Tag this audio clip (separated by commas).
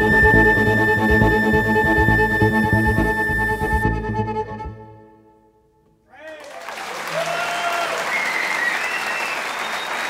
Bowed string instrument, Percussion, Music, Musical instrument, Cello, Double bass, Speech, Music of Latin America